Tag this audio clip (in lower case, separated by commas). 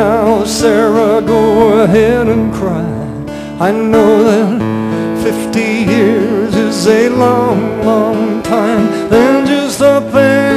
music